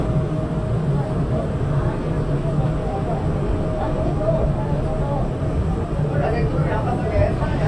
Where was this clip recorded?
on a subway train